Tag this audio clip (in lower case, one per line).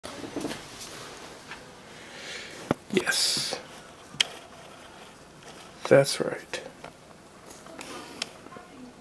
speech